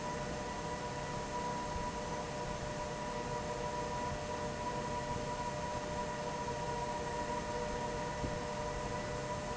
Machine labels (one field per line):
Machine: fan